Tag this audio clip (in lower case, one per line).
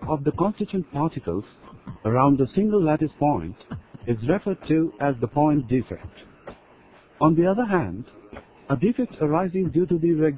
speech